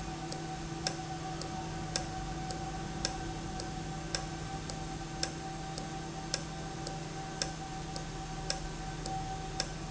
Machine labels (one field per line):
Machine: valve